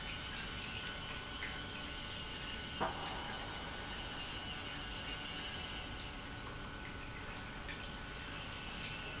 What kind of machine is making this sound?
pump